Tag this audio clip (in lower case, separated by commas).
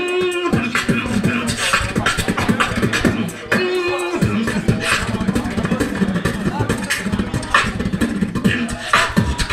beatboxing, music, hip hop music